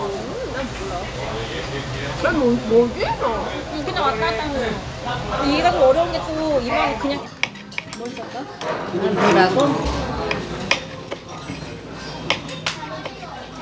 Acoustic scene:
restaurant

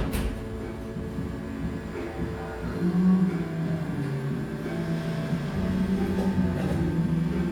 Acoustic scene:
cafe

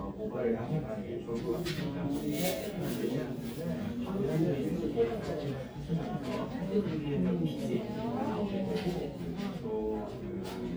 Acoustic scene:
crowded indoor space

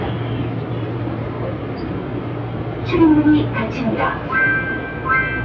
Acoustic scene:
subway train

